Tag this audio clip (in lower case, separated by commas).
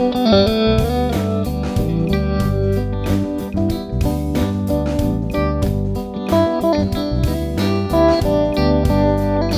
distortion, music